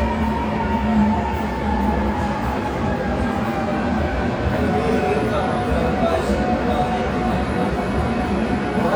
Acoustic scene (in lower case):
subway station